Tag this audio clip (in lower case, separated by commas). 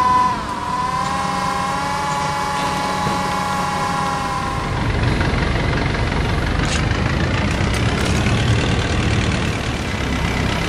vehicle